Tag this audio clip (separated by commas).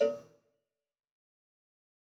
Cowbell, Bell